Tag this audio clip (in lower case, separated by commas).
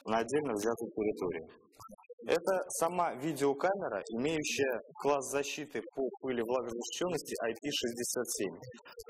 speech